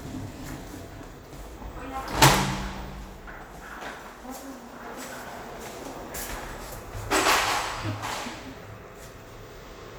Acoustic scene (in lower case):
elevator